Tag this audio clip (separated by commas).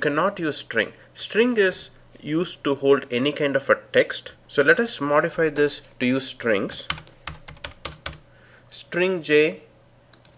Typing